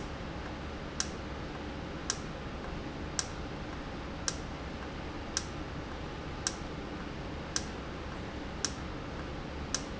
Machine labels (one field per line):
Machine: valve